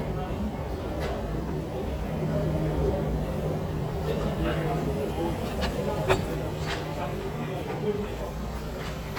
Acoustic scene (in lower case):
street